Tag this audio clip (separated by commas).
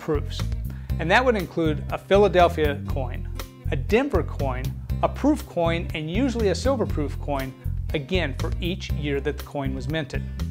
Speech, Music